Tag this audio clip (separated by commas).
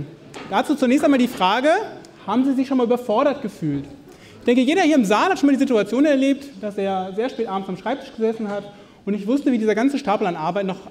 Speech